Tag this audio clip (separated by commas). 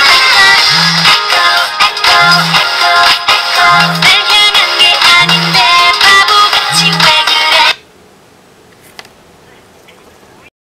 Music, Ringtone